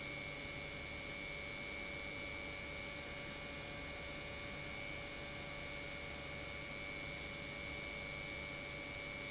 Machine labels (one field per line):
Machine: pump